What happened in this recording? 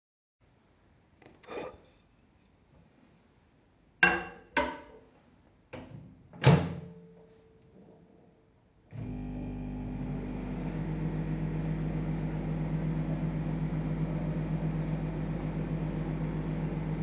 I grabbed a plate, put it into the microwave and started the microwave.